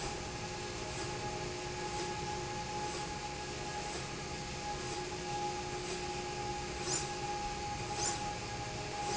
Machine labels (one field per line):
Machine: slide rail